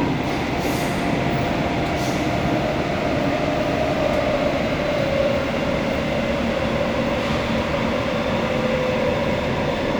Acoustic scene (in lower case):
subway train